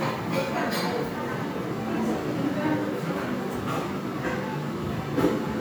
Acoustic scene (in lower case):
crowded indoor space